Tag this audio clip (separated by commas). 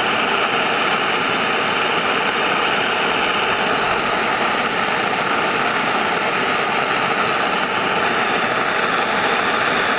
outside, rural or natural